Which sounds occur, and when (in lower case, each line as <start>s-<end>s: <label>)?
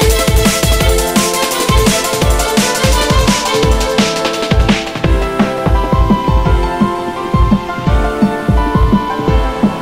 0.0s-9.8s: music